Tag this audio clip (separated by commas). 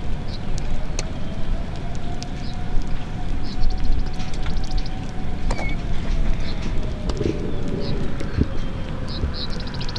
tornado roaring